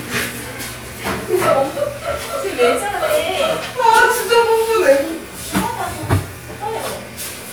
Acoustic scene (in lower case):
crowded indoor space